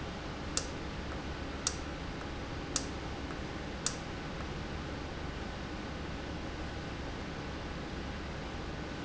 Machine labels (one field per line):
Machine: valve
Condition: normal